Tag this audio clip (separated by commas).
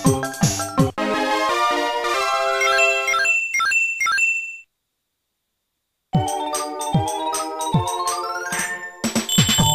Music, Video game music